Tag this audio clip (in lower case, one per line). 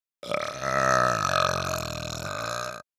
burping